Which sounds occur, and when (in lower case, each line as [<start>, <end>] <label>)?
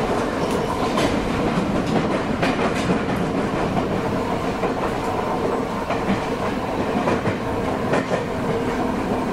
[0.00, 9.32] train
[0.35, 0.48] tick
[0.64, 2.15] clickety-clack
[2.34, 3.11] clickety-clack
[3.42, 3.96] clickety-clack
[4.51, 4.99] clickety-clack
[5.78, 6.54] clickety-clack
[6.81, 7.45] clickety-clack
[7.80, 8.24] clickety-clack